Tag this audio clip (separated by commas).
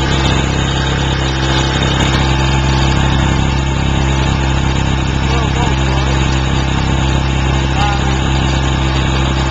Speech